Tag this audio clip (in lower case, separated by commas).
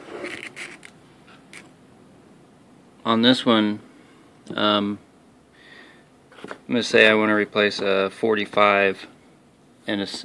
speech